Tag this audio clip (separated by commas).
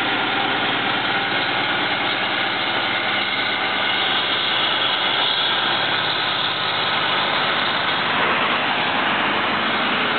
Vehicle